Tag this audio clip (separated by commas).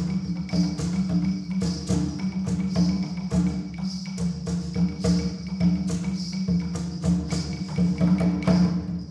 Percussion, Timpani, Music